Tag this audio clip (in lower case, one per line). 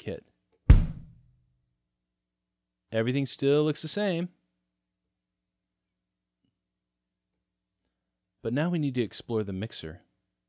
musical instrument
drum
music
bass drum
speech